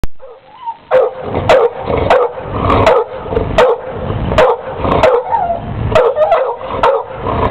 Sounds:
Domestic animals, Animal, Bark, Dog

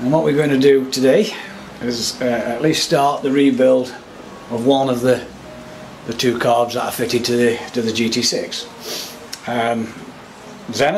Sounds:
Speech

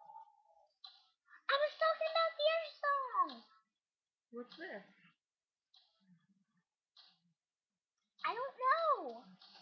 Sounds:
Speech

